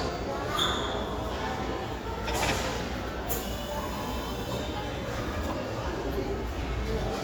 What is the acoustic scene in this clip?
crowded indoor space